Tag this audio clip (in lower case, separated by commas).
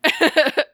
laughter, human voice